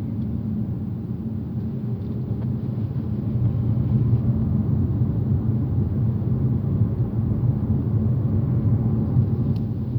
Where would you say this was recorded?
in a car